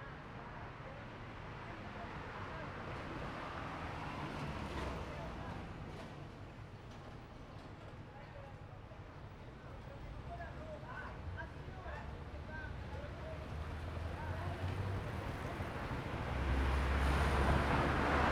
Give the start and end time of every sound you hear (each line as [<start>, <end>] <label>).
[0.00, 6.77] truck engine accelerating
[0.00, 11.65] truck
[0.00, 11.65] truck wheels rolling
[0.00, 14.71] people talking
[13.30, 18.31] motorcycle
[13.30, 18.31] motorcycle engine idling
[15.68, 18.31] car
[15.68, 18.31] car engine accelerating
[15.68, 18.31] car wheels rolling